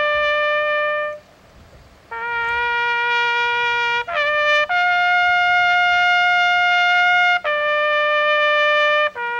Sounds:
Trumpet, outside, urban or man-made, Music

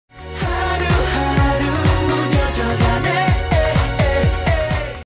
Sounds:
Music

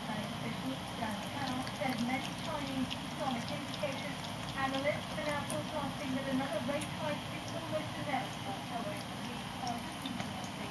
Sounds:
Speech

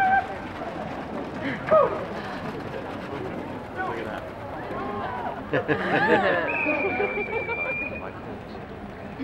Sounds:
outside, urban or man-made, Speech

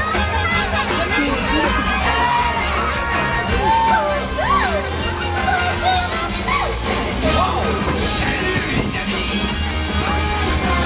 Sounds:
Music, Speech

